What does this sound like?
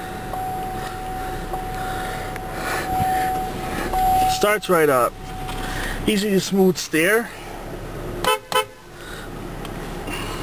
Repeated pinging precedes a young man speaking and a car horn